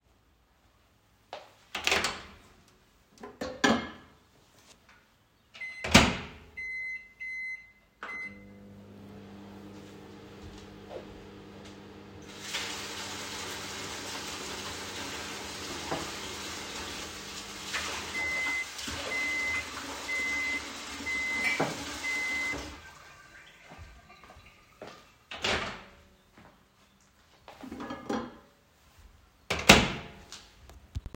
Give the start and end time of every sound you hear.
1.3s-23.0s: microwave
10.3s-12.3s: footsteps
12.3s-25.8s: running water
21.4s-21.8s: cutlery and dishes
24.2s-28.0s: footsteps
25.3s-26.0s: microwave
27.8s-28.5s: microwave
29.4s-30.2s: microwave

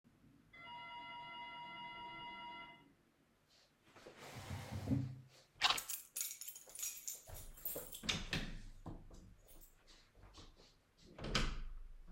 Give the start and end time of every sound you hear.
0.5s-2.9s: bell ringing
5.6s-8.0s: keys
6.6s-8.0s: footsteps
8.1s-8.6s: door
9.3s-10.9s: footsteps
9.5s-9.9s: keys
11.1s-11.8s: door

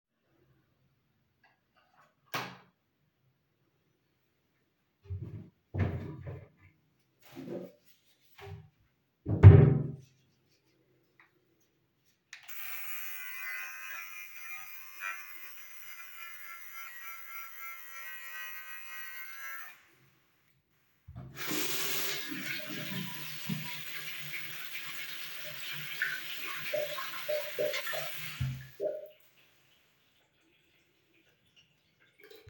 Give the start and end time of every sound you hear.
1.8s-3.9s: light switch
5.5s-10.7s: wardrobe or drawer
21.2s-29.3s: running water

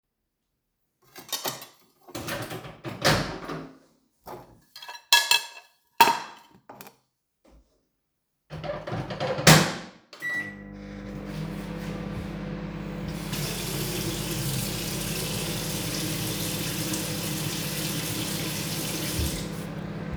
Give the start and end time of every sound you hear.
1.0s-2.1s: cutlery and dishes
4.2s-7.0s: cutlery and dishes
8.5s-20.2s: microwave
13.1s-19.7s: running water

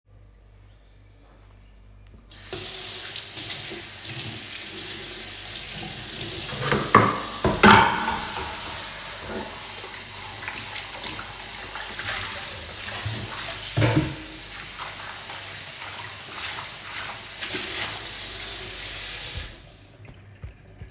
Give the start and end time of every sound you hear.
2.2s-19.9s: running water
6.5s-8.9s: cutlery and dishes
13.6s-14.4s: cutlery and dishes

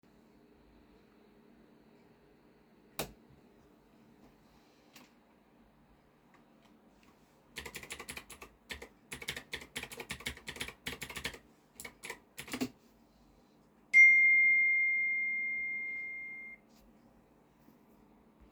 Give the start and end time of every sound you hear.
2.9s-3.1s: light switch
7.6s-12.8s: keyboard typing
13.9s-16.7s: phone ringing

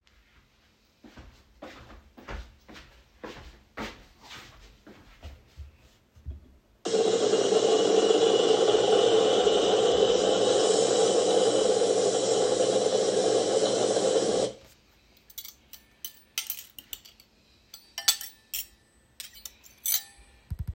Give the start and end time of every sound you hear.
0.8s-6.4s: footsteps
6.8s-14.6s: coffee machine
15.3s-20.1s: cutlery and dishes

